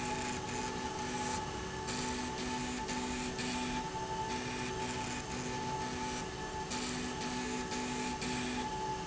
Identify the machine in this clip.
slide rail